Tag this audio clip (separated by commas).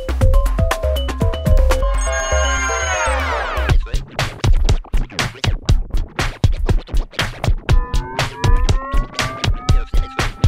Sampler, Scratching (performance technique)